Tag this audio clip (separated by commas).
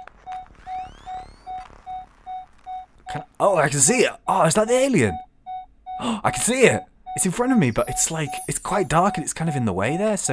Speech